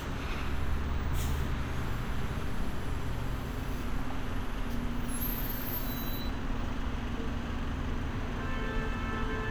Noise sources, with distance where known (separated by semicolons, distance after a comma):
large-sounding engine, near; car horn, near